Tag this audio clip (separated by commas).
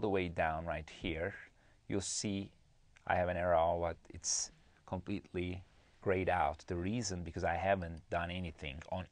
Speech